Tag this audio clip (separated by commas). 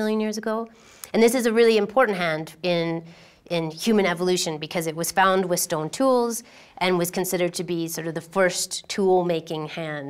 Speech